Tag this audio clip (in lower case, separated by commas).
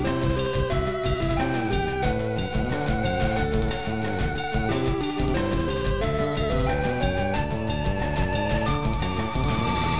video game music, music